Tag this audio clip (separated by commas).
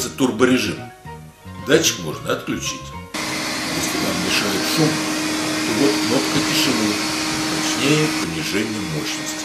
Vacuum cleaner, Music, Speech